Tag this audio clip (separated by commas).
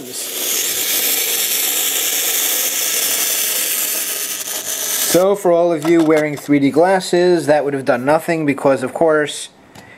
inside a small room, Speech